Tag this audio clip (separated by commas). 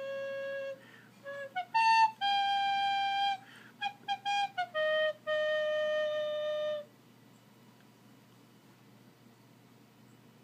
woodwind instrument, Musical instrument, Flute, Music